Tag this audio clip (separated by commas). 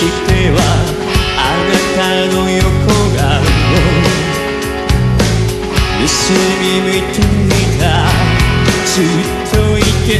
Music